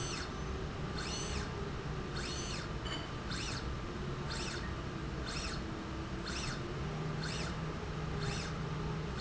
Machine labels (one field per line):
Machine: slide rail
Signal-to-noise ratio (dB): -6 dB